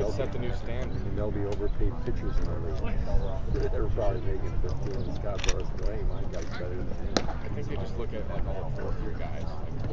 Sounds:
speech

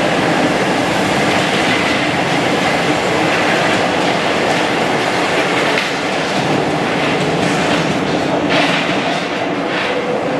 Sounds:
metro

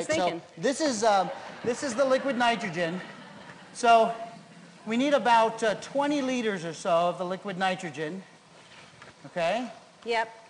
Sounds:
speech

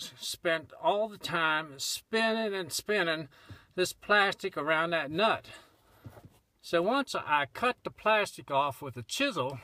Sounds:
speech

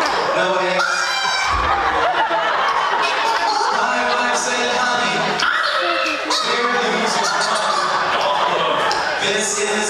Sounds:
cluck, speech

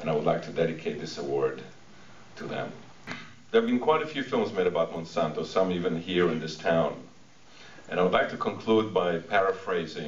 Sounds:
speech, male speech, narration

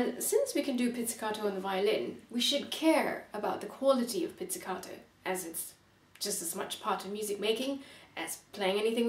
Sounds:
speech

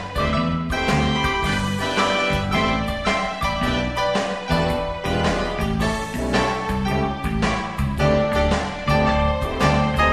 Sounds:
rhythm and blues, christmas music, music, background music

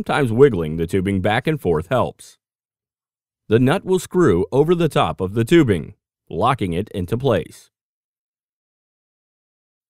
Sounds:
speech

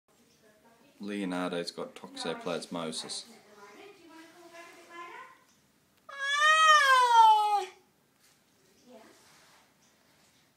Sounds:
speech

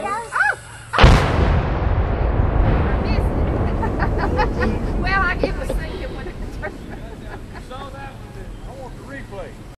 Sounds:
explosion, speech, pop

